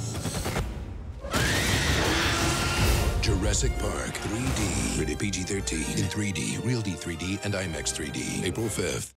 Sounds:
music
speech

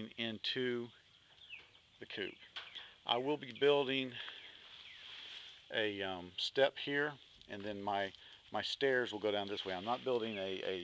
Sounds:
outside, rural or natural
speech

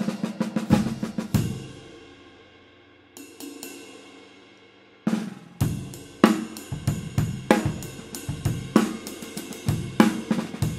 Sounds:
drum kit
cymbal
drum
hi-hat
drum roll
snare drum
percussion
bass drum
rimshot

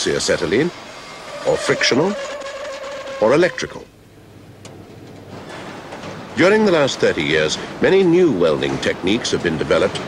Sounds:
arc welding

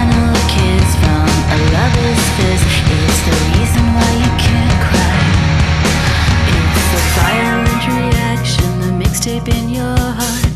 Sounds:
music

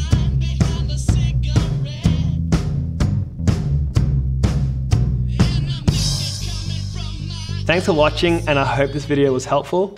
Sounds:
playing tympani

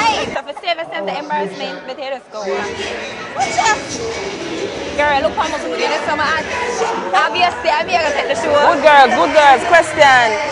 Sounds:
music
speech
outside, urban or man-made

